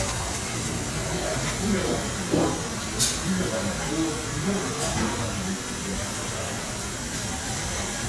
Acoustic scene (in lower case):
restaurant